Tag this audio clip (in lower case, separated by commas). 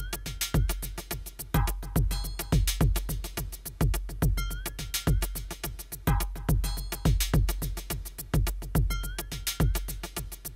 drum machine, music, sampler